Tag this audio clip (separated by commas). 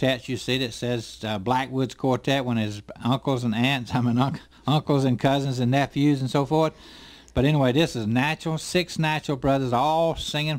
Speech